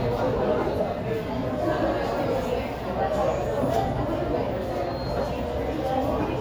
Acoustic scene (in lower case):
subway station